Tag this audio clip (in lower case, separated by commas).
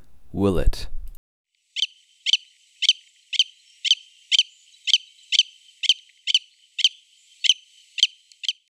bird vocalization, wild animals, bird, animal